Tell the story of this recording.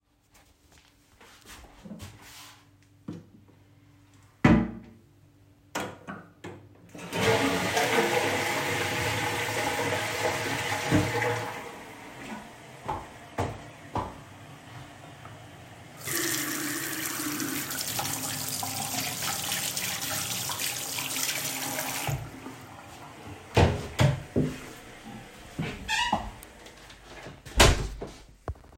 I stood up, closed the toilet seat and flushed the toilet, I proceeded to wash my hands and leave the bathroom